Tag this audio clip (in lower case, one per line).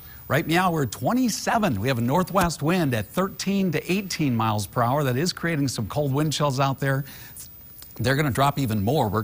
speech